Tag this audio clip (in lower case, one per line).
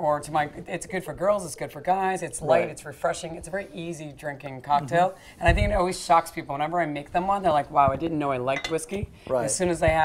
speech